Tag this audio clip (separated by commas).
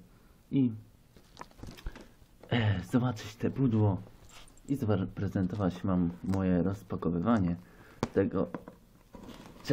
Speech